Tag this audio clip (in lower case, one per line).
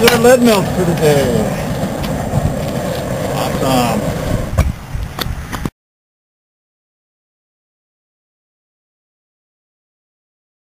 speech